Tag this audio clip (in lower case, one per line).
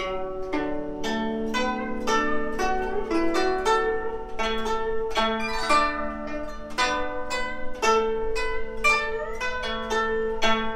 music
traditional music